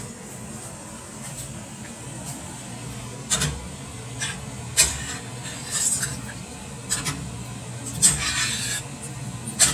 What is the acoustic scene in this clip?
kitchen